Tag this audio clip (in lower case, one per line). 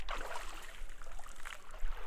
liquid
splatter